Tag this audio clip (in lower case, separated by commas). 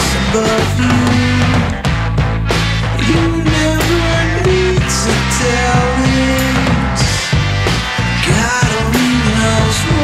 music